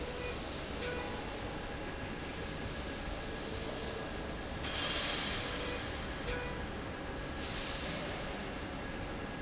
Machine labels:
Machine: slide rail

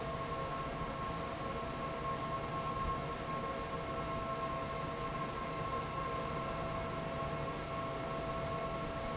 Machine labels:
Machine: fan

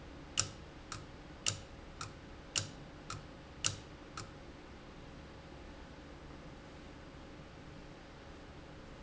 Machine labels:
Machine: valve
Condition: abnormal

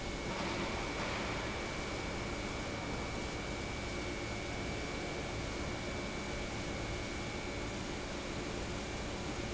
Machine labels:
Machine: pump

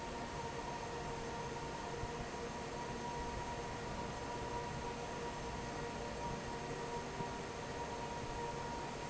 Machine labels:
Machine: fan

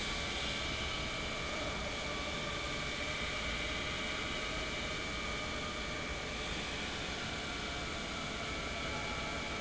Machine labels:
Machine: pump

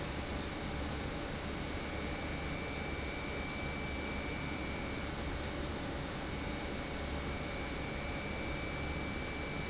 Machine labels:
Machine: pump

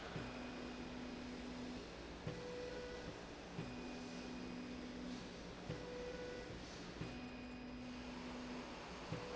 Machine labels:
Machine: slide rail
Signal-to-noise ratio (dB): 6 dB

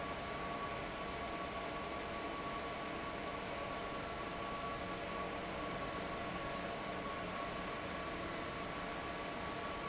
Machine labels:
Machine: fan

